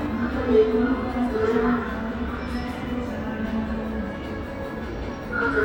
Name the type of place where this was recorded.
subway station